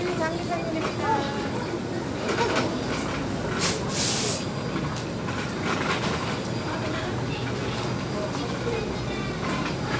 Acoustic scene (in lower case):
crowded indoor space